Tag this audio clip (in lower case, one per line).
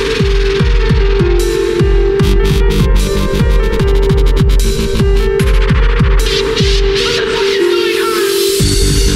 music
dubstep